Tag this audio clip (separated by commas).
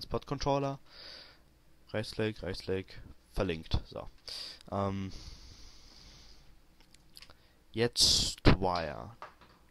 Speech, inside a small room